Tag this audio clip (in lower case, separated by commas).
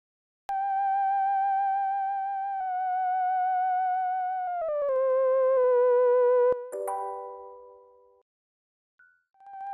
music, theremin